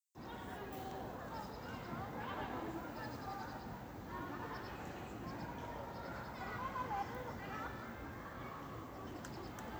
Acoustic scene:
park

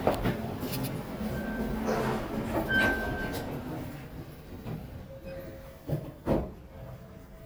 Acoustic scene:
elevator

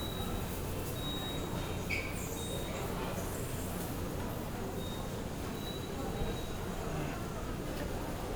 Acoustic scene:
subway station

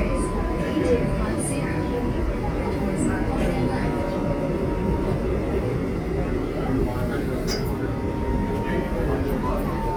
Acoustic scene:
subway train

